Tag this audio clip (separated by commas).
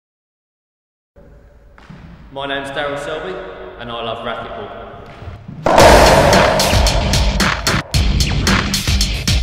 playing squash